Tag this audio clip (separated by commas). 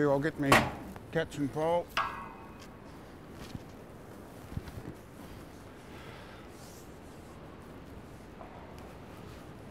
Speech